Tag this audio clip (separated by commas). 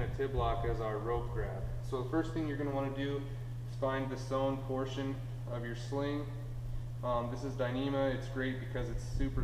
Speech